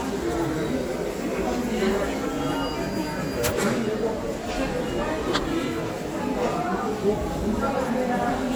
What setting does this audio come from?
crowded indoor space